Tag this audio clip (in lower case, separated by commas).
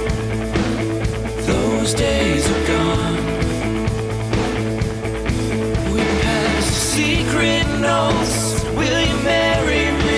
music, new-age music